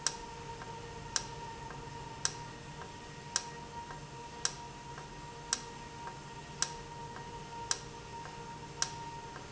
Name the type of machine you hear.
valve